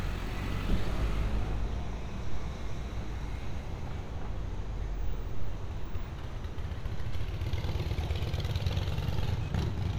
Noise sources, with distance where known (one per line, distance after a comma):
medium-sounding engine